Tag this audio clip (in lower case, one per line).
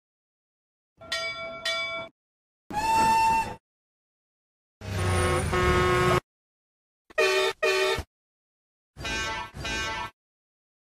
train whistling